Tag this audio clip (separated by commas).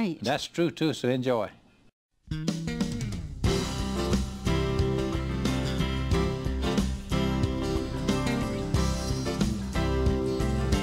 Speech, Tender music, Music